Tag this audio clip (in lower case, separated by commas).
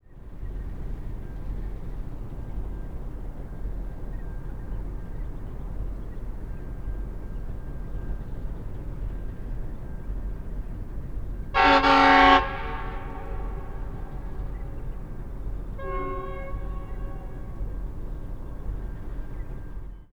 train, vehicle, rail transport